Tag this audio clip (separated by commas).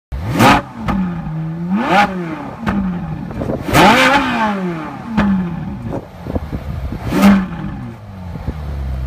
vroom, Car, revving, Motor vehicle (road), outside, urban or man-made, Heavy engine (low frequency), Vehicle